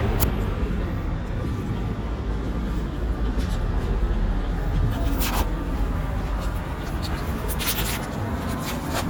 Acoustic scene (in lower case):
residential area